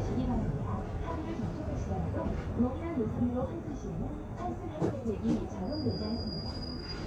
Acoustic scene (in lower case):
bus